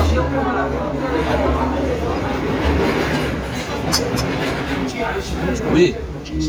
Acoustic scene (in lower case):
restaurant